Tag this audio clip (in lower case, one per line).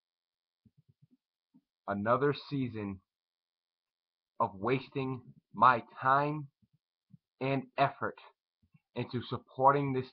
speech